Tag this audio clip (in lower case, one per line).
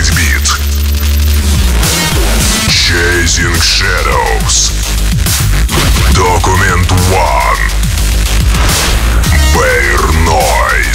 dubstep
electronic music
music